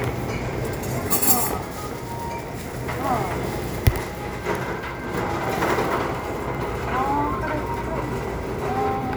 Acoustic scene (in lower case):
crowded indoor space